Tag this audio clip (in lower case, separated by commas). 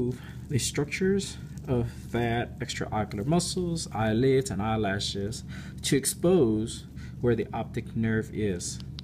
speech